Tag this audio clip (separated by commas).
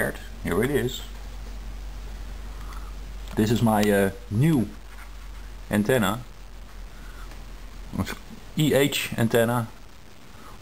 inside a small room, Speech